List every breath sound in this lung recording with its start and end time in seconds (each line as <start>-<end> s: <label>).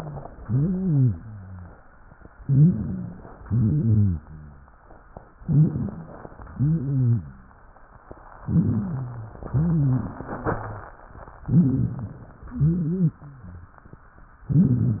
0.36-1.77 s: wheeze
2.39-3.34 s: inhalation
2.39-3.34 s: wheeze
3.44-4.38 s: exhalation
3.44-4.75 s: wheeze
5.41-6.38 s: inhalation
5.41-6.38 s: wheeze
6.45-7.67 s: exhalation
6.45-7.67 s: wheeze
8.41-9.43 s: inhalation
8.41-9.43 s: wheeze
9.47-10.93 s: exhalation
9.47-10.93 s: wheeze
11.44-12.28 s: inhalation
11.44-12.28 s: wheeze
12.48-13.32 s: exhalation
12.48-13.32 s: wheeze
14.48-15.00 s: inhalation
14.48-15.00 s: wheeze